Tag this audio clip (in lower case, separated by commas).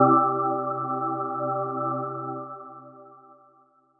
music, organ, musical instrument, keyboard (musical)